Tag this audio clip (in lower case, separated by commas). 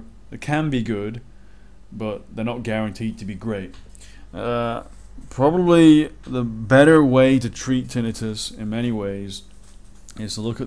speech